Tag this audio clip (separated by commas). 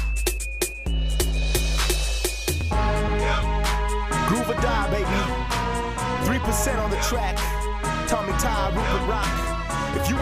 Music